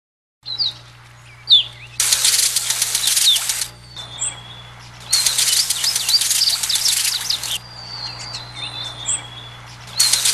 Birds tweeting, sprinklers turning on